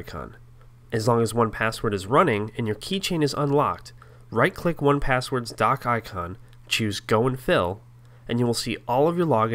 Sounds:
speech

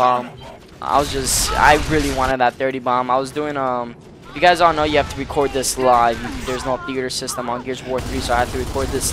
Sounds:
speech

